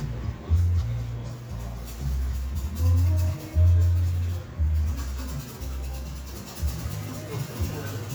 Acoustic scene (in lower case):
cafe